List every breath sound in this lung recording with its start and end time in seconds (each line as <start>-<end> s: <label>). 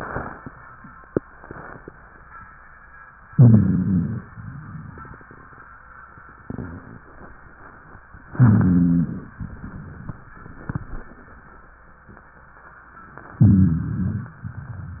3.34-4.23 s: inhalation
3.34-4.23 s: rhonchi
4.33-5.33 s: exhalation
8.33-9.34 s: inhalation
8.33-9.34 s: rhonchi
9.39-10.40 s: exhalation
13.41-14.42 s: inhalation
13.41-14.42 s: rhonchi
14.42-15.00 s: exhalation